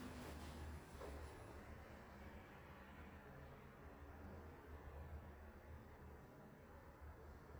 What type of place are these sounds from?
elevator